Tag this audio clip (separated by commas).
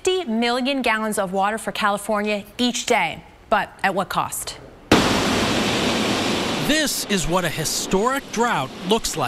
surf, Ocean